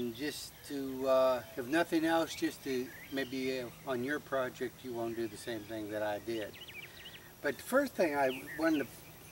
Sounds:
speech

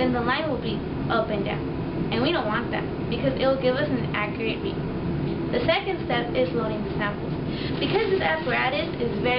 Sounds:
speech

